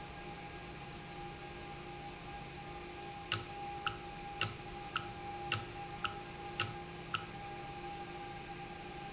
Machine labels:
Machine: valve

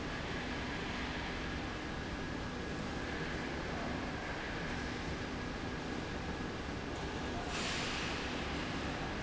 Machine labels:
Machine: slide rail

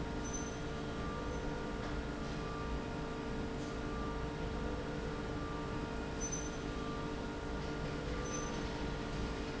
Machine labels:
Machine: slide rail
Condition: normal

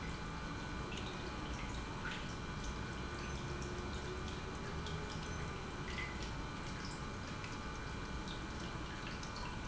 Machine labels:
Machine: pump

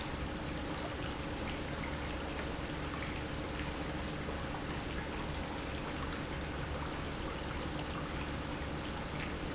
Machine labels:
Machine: pump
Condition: normal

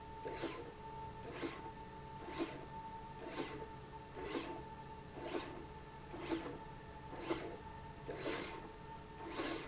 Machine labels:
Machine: slide rail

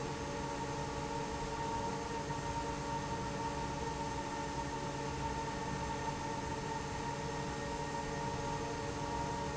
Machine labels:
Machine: fan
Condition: normal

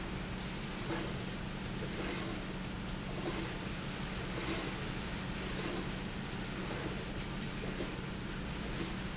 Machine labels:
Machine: slide rail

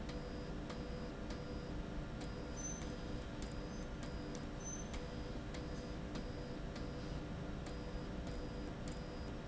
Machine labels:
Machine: slide rail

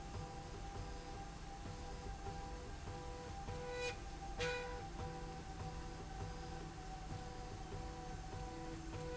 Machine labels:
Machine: slide rail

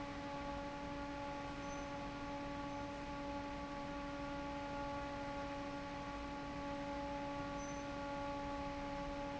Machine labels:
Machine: fan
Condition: normal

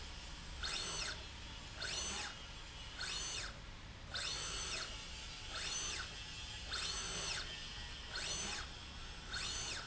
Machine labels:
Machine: slide rail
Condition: normal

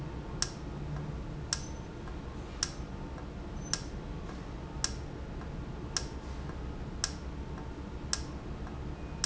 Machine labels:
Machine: valve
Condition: normal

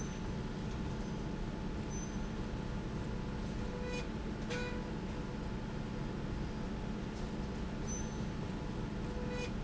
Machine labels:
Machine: slide rail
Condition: normal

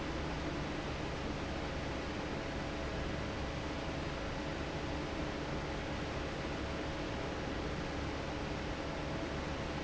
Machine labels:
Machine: fan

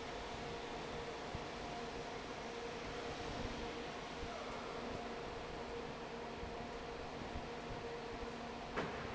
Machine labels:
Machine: fan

